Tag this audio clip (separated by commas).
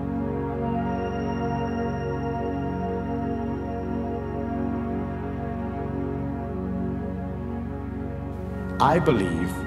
Music, New-age music, Speech